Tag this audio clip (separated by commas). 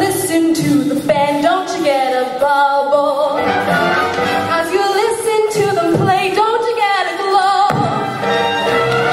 Music